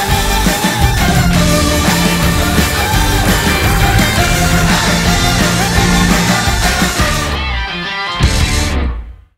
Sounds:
music

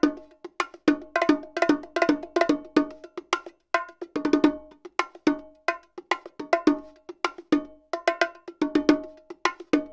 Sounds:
playing bongo

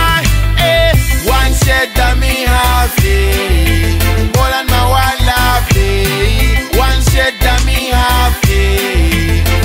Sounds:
music

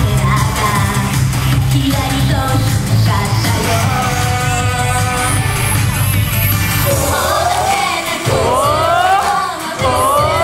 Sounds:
music

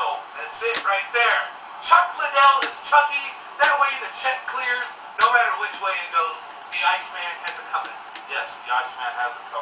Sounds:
speech

